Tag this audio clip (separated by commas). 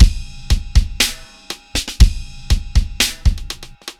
Percussion, Musical instrument, Drum kit, Drum, Music